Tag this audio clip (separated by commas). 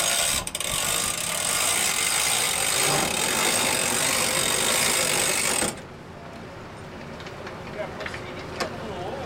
Speech, Vehicle, Motorboat, Water vehicle